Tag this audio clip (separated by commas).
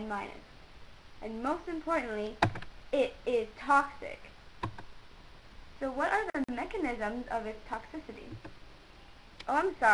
Speech